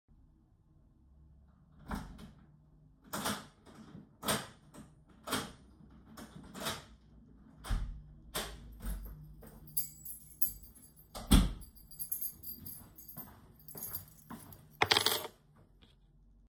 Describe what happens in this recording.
I unlocked the door with my keys, went to the table, and put the keys on it.